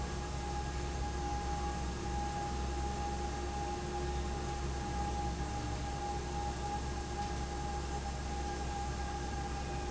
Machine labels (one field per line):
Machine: fan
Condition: abnormal